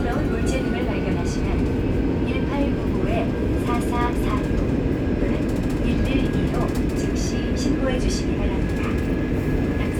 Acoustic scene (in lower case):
subway train